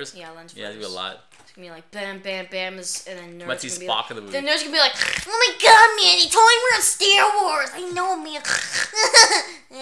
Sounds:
speech

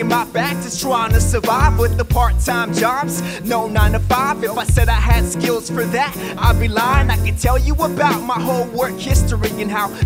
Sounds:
music
pop music
funk
happy music

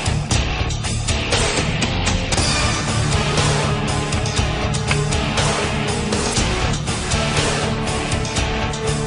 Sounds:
music

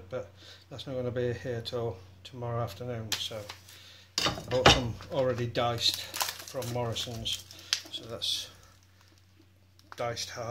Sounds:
speech

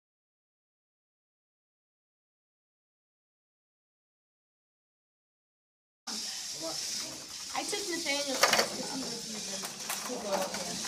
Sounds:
sizzle

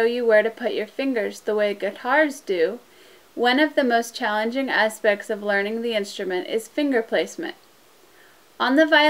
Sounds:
speech

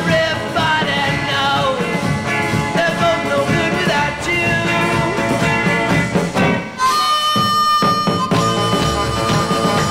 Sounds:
punk rock
music
ska
rock music
swing music

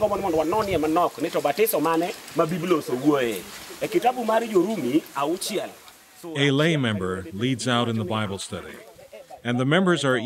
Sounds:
speech
rain on surface

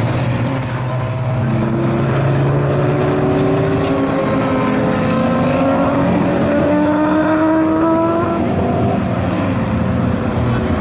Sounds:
race car

